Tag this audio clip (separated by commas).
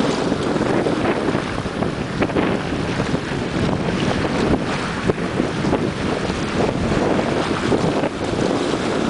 sailing ship, Vehicle, kayak rowing, Boat, canoe